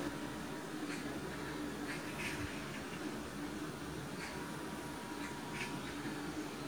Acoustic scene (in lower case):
park